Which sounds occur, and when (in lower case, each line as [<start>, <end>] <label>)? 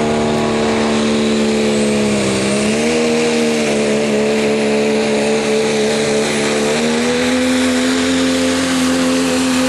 [0.00, 2.25] medium engine (mid frequency)
[2.24, 9.65] motor vehicle (road)